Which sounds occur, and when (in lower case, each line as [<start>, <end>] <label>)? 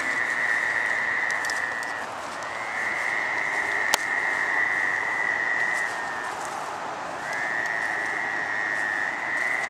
[0.00, 2.11] frog
[0.00, 9.65] rustle
[0.00, 9.65] wind
[2.40, 6.33] frog
[3.94, 4.14] tick
[7.11, 9.65] frog
[7.33, 7.45] tick
[7.63, 7.75] tick
[8.06, 8.17] tick